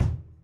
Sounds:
Bass drum, Musical instrument, Percussion, Drum, Music

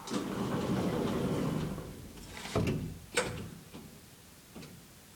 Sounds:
Domestic sounds, Door, Sliding door

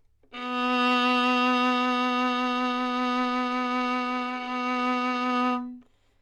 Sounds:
Musical instrument, Bowed string instrument, Music

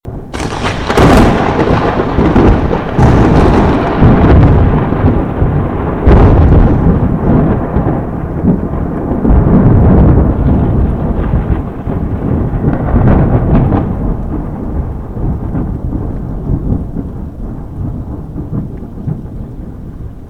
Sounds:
Thunderstorm, Thunder

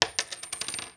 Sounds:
Coin (dropping), Domestic sounds

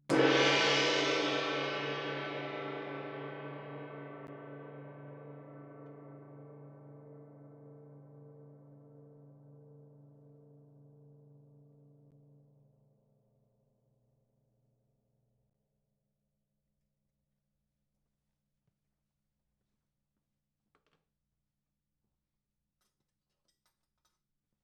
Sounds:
Percussion, Music, Gong, Musical instrument

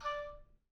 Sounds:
Musical instrument, Music, woodwind instrument

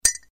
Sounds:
Glass

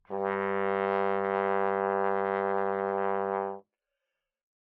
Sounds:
Musical instrument, Brass instrument, Music

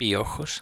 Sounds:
Human voice

